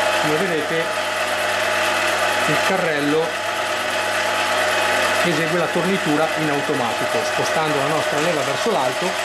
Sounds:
lathe spinning

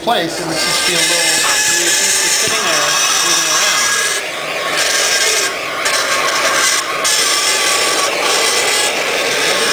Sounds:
speech

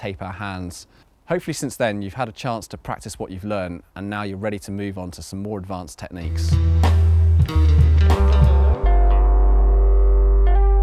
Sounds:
speech, music

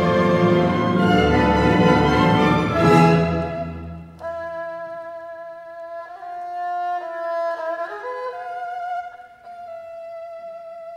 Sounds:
playing erhu

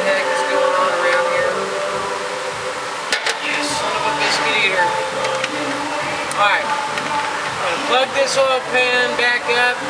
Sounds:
music, speech

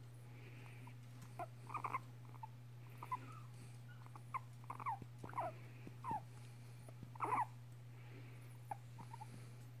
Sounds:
mice, pets

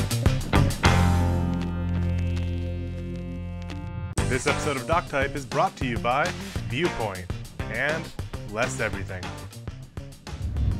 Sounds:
music, speech

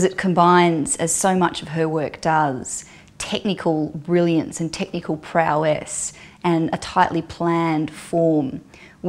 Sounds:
speech

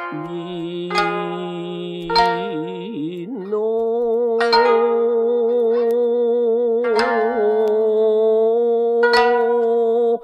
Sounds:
music

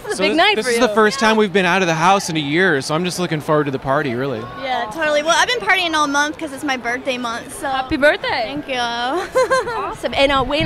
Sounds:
speech

